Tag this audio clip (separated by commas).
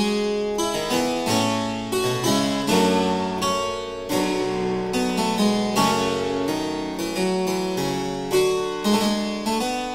Piano, Keyboard (musical)